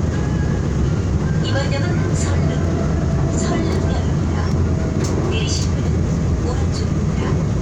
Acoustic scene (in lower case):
subway train